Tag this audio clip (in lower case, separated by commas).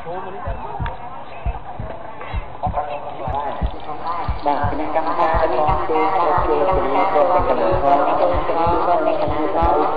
music, speech